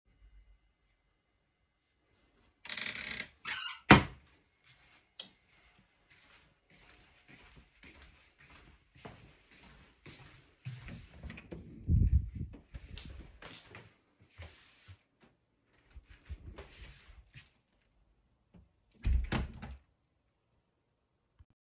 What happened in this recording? I closed the wardrobe in the bathroom, turned off the lights and went through the hallway to the office. I opened the door of the office, turned on the lights and closed the door. I carried my phone with me.